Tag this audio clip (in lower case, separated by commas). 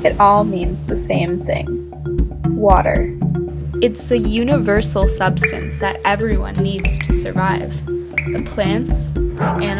music, speech